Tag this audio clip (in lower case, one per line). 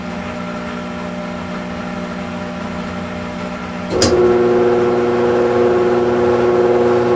engine